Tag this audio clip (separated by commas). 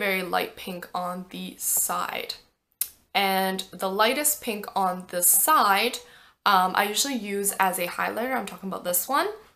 inside a small room, Speech